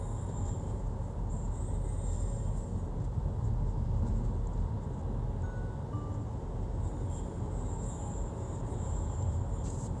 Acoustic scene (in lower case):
car